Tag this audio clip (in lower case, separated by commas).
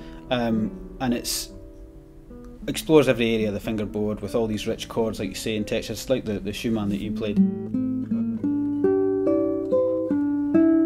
musical instrument, music, speech, plucked string instrument, guitar